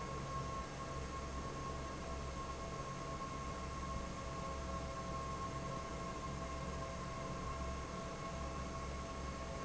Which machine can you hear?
fan